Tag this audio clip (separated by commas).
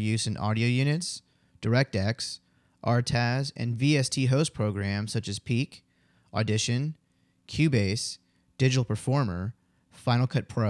Speech